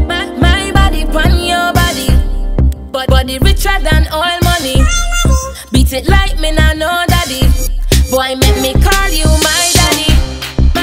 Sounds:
electronic music
music

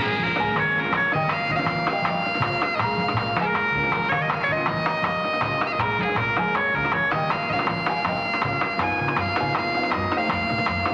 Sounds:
playing bagpipes

